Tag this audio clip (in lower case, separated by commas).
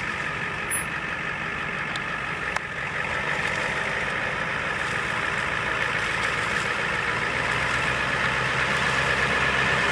vehicle